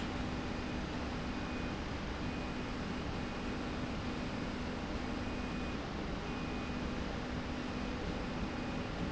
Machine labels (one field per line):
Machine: slide rail